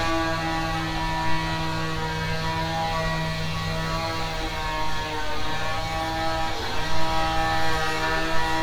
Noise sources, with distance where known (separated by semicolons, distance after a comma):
small or medium rotating saw, near